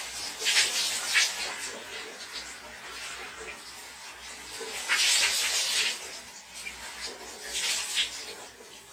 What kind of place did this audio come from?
restroom